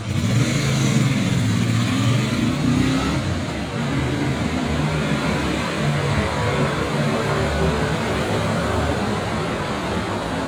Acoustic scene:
street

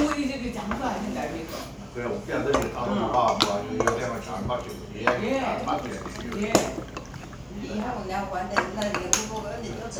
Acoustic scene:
crowded indoor space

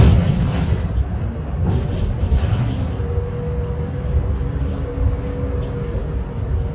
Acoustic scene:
bus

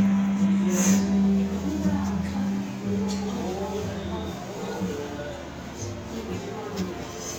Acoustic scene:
restaurant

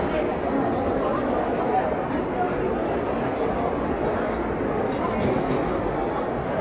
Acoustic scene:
crowded indoor space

